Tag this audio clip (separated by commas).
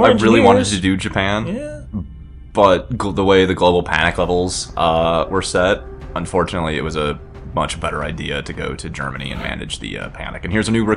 Speech